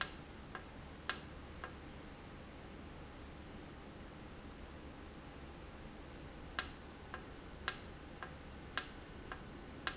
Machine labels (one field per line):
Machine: valve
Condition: normal